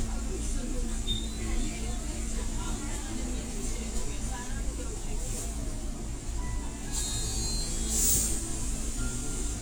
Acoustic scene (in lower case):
bus